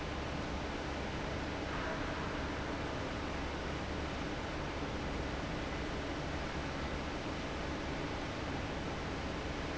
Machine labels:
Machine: fan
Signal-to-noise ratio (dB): -6 dB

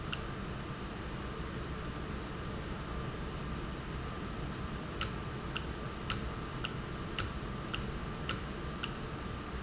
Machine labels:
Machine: valve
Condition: normal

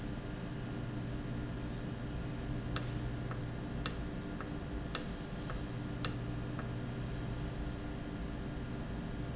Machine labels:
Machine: valve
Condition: normal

